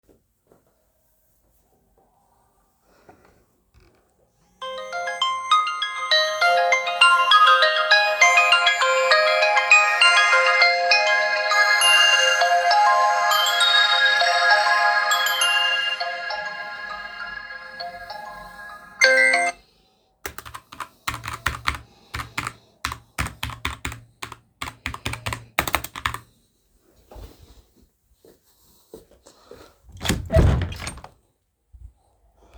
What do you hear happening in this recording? After the phone rang I started typing on the keyboard, then walked to the door and opened it.